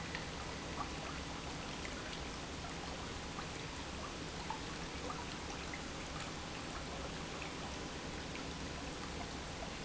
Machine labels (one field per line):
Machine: pump